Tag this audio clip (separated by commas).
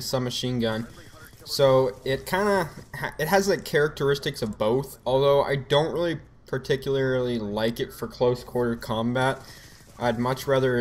Speech